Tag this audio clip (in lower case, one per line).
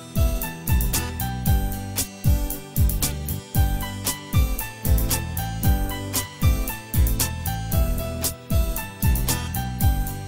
tender music
music